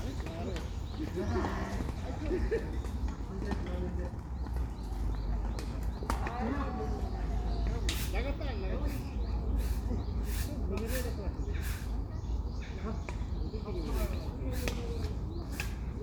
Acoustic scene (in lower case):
park